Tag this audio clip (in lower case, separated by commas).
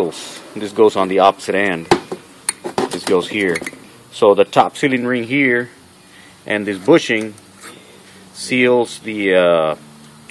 speech